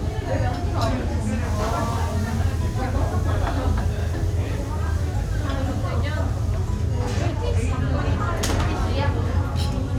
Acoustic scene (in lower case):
restaurant